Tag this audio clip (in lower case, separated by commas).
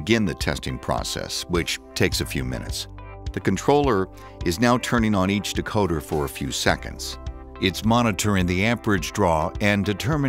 music, speech